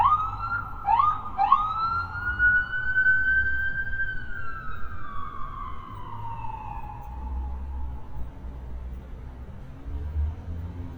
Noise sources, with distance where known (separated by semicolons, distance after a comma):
siren, near